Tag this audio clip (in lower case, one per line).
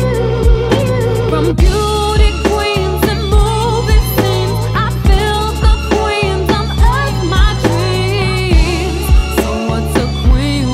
music